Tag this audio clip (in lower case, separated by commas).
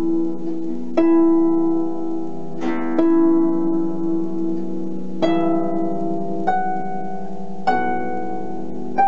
music